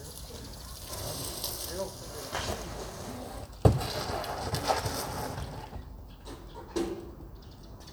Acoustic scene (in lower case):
residential area